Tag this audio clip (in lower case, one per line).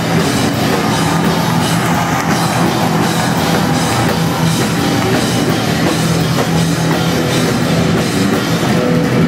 strum
music
musical instrument
guitar